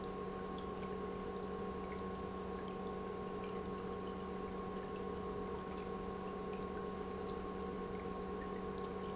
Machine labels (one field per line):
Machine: pump